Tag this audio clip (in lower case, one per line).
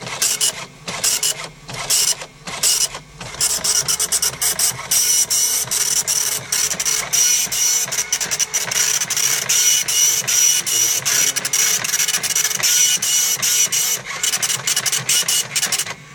printer
mechanisms